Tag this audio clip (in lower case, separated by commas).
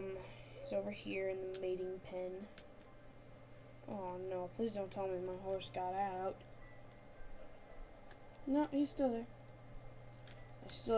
speech